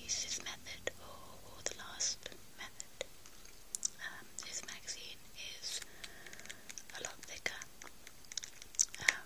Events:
0.0s-0.9s: whispering
0.0s-9.2s: mechanisms
1.0s-2.3s: whispering
2.6s-3.0s: whispering
2.7s-2.8s: tick
3.2s-3.9s: generic impact sounds
4.0s-4.2s: whispering
4.4s-5.1s: whispering
5.4s-5.8s: whispering
5.8s-6.0s: crumpling
5.9s-6.6s: breathing
6.2s-7.0s: crumpling
6.9s-7.7s: whispering
7.2s-7.6s: crumpling
7.8s-8.1s: crumpling
8.3s-9.2s: crumpling
8.9s-9.2s: whispering

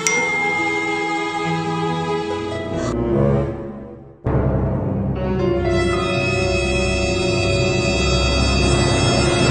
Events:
0.0s-1.6s: bell
0.0s-2.9s: music
2.6s-2.9s: scrape
2.9s-9.5s: sound effect
3.5s-4.2s: reverberation

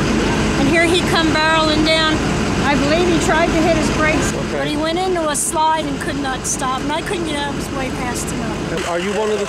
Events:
0.0s-9.4s: heavy engine (low frequency)
0.5s-2.1s: woman speaking
0.6s-8.2s: conversation
2.6s-4.3s: woman speaking
4.3s-4.8s: man speaking
4.5s-8.6s: woman speaking
8.6s-9.4s: man speaking

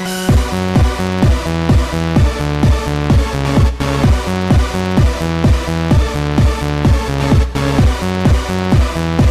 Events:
0.0s-9.3s: music

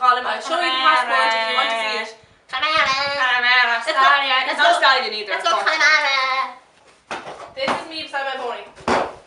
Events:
0.0s-2.1s: female speech
0.0s-8.8s: conversation
0.0s-9.2s: background noise
2.2s-2.4s: breathing
2.5s-6.6s: female speech
6.7s-6.9s: clip-clop
7.1s-7.5s: clip-clop
7.6s-8.8s: female speech
7.6s-7.9s: clip-clop
8.8s-9.2s: clip-clop

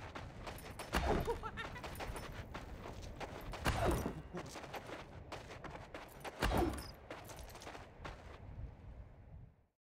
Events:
0.0s-0.2s: footsteps
0.0s-9.7s: video game sound
0.4s-0.8s: footsteps
0.9s-1.4s: sound effect
1.3s-2.2s: laughter
1.6s-3.6s: footsteps
3.6s-4.3s: sound effect
4.1s-4.6s: human voice
4.3s-5.1s: footsteps
5.3s-6.0s: footsteps
6.2s-6.3s: footsteps
6.4s-6.9s: sound effect
7.1s-7.8s: footsteps
8.0s-8.4s: footsteps

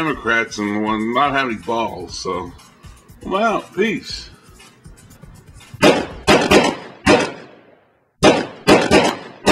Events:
0.0s-2.6s: man speaking
0.0s-5.8s: music
0.0s-9.5s: background noise
3.2s-4.3s: man speaking
4.4s-4.8s: breathing
5.8s-6.1s: sound effect
6.3s-6.8s: sound effect
7.0s-7.4s: sound effect
8.2s-8.5s: sound effect
8.6s-9.2s: sound effect
9.4s-9.5s: sound effect

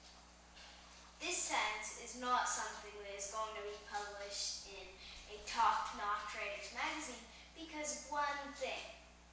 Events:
0.0s-9.3s: mechanisms
0.5s-1.1s: breathing
1.2s-4.7s: kid speaking
4.7s-5.4s: breathing
5.5s-7.2s: kid speaking
7.3s-7.5s: breathing
7.6s-9.0s: kid speaking

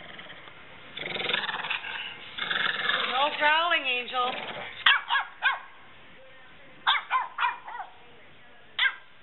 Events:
0.0s-9.2s: wind
0.0s-0.5s: dog
0.8s-4.7s: dog
2.8s-4.3s: female speech
4.8s-5.6s: bark
6.8s-7.8s: bark
8.8s-9.0s: bark

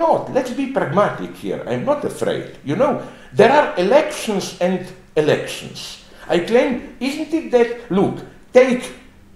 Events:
0.0s-9.3s: background noise
0.0s-3.1s: man speaking
3.2s-4.9s: man speaking
5.2s-6.0s: man speaking
6.2s-8.3s: man speaking
8.5s-9.0s: man speaking

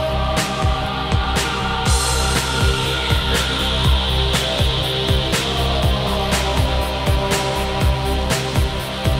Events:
0.0s-9.1s: music

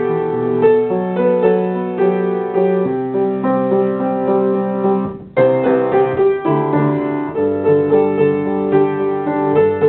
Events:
0.0s-9.8s: music

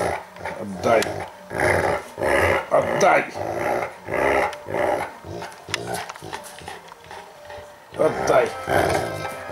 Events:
0.0s-0.3s: dog
0.0s-9.5s: mechanisms
0.0s-9.5s: music
0.3s-0.4s: generic impact sounds
0.4s-0.7s: dog
0.6s-1.1s: man speaking
0.8s-0.9s: generic impact sounds
0.8s-1.3s: dog
1.0s-1.0s: generic impact sounds
1.5s-2.0s: dog
1.8s-2.1s: surface contact
2.2s-2.6s: dog
2.7s-3.3s: man speaking
2.8s-3.2s: dog
3.0s-3.1s: generic impact sounds
3.4s-3.9s: dog
3.8s-3.9s: generic impact sounds
4.1s-4.6s: dog
4.5s-4.6s: generic impact sounds
4.7s-5.1s: dog
5.0s-5.1s: generic impact sounds
5.2s-5.5s: dog
5.3s-6.9s: generic impact sounds
5.7s-6.1s: dog
6.2s-6.4s: dog
7.1s-7.2s: generic impact sounds
7.5s-7.6s: generic impact sounds
7.9s-8.0s: generic impact sounds
7.9s-8.5s: dog
7.9s-8.5s: man speaking
8.2s-8.3s: generic impact sounds
8.4s-8.5s: generic impact sounds
8.7s-9.3s: dog
8.8s-9.0s: generic impact sounds
9.2s-9.3s: generic impact sounds

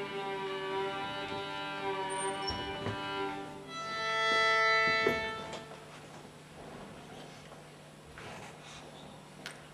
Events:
0.0s-5.8s: music
0.0s-9.7s: mechanisms
2.0s-2.8s: squeal
2.4s-2.5s: tap
2.8s-3.0s: tap
4.2s-4.4s: tap
4.8s-5.1s: tap
5.5s-5.7s: generic impact sounds
5.9s-6.2s: generic impact sounds
6.5s-7.0s: surface contact
7.1s-7.4s: generic impact sounds
8.1s-9.2s: surface contact
9.4s-9.5s: tick

